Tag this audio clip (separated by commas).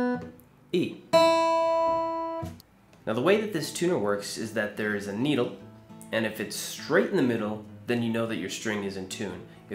Speech, Music